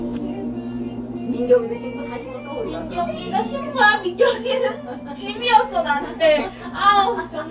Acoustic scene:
cafe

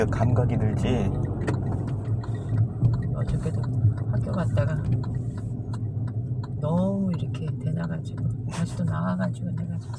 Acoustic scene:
car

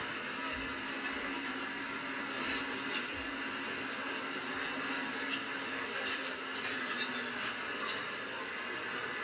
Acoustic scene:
bus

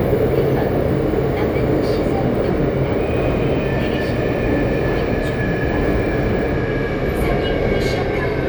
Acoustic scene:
subway train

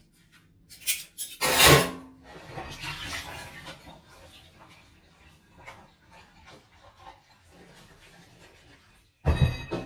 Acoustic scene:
kitchen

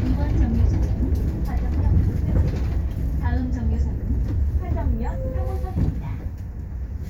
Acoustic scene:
bus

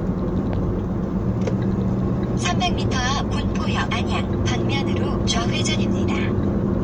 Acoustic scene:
car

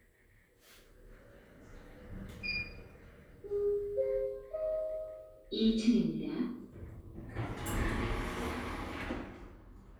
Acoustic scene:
elevator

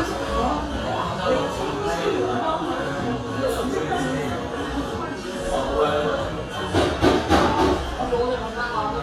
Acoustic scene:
cafe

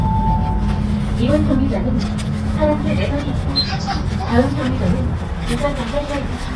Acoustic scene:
bus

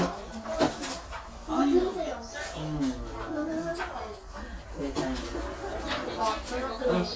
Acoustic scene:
crowded indoor space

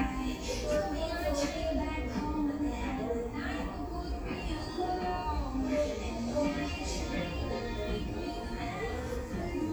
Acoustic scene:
crowded indoor space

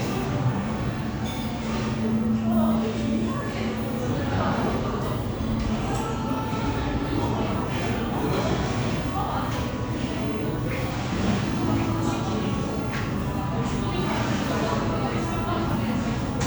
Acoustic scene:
crowded indoor space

